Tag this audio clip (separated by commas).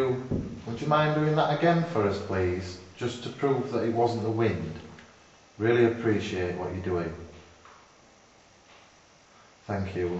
Speech